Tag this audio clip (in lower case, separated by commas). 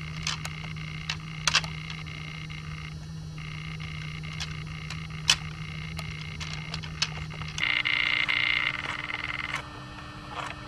outside, rural or natural